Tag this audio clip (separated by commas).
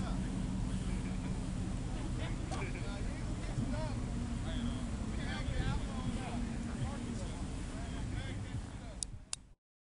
Speech